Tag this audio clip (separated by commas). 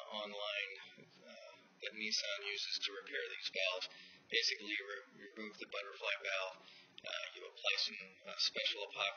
Speech